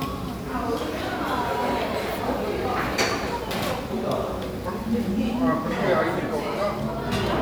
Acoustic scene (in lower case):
crowded indoor space